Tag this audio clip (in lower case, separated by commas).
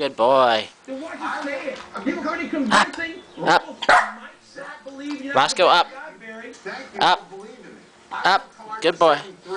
canids, speech, domestic animals, animal, inside a small room, dog